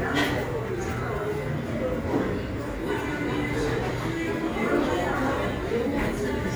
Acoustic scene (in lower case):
cafe